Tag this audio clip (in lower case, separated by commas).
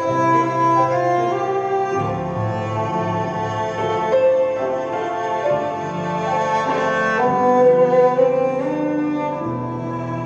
musical instrument, music, fiddle